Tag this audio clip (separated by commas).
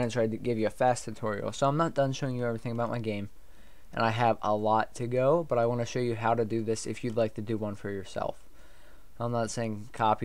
Speech